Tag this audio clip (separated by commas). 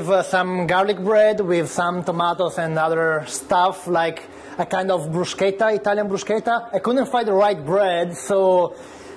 Speech